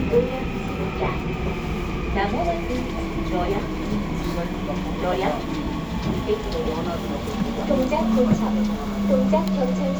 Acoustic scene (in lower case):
subway train